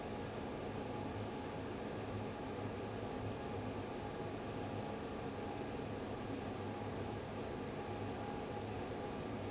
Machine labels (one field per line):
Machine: fan